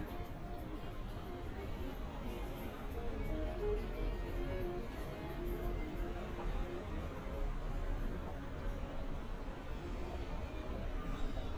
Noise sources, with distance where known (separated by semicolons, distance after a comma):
music from an unclear source